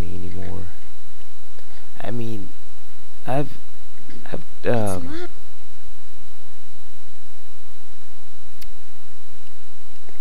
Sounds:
Speech

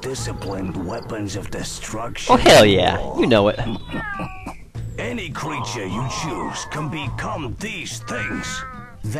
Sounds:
Speech

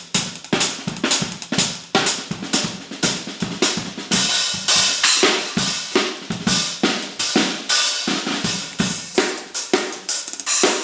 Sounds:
Drum kit, Music, Drum, Musical instrument

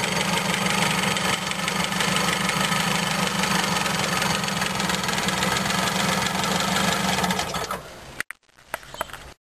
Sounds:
Idling, Vehicle, Engine, Medium engine (mid frequency)

